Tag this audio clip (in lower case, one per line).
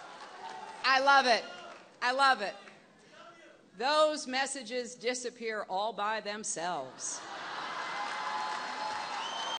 speech